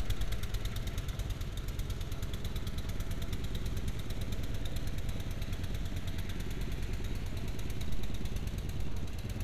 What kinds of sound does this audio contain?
medium-sounding engine